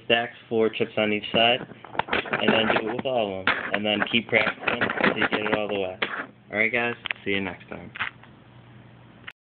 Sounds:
speech

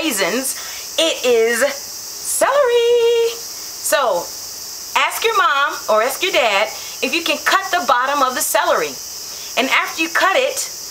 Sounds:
speech
inside a large room or hall

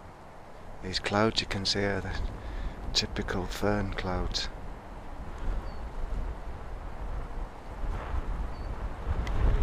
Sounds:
wind
wind noise (microphone)

